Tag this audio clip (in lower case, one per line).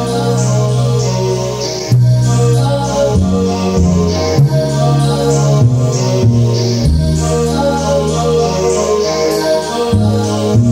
music